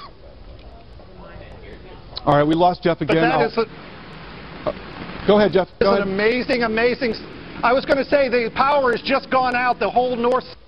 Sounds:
speech

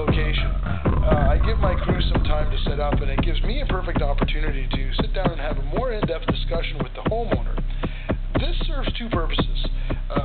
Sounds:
music, speech

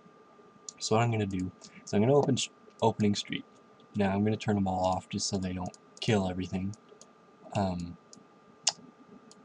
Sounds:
speech

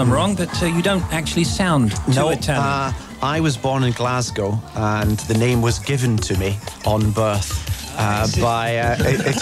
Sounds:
music, speech

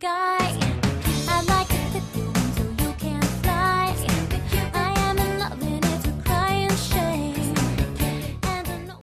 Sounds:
music

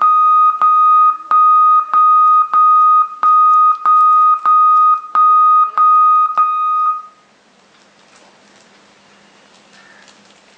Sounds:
beep, inside a small room, television

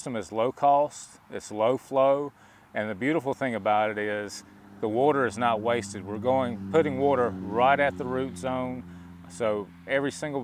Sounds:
speech

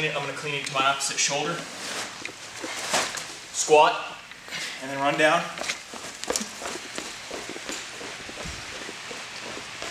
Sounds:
speech, run

